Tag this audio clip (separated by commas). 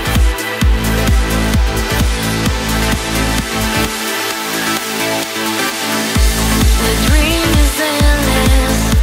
Music